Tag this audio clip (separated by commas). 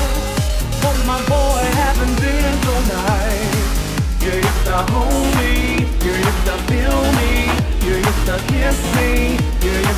Music, Soundtrack music